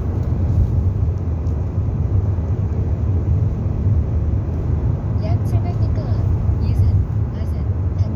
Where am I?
in a car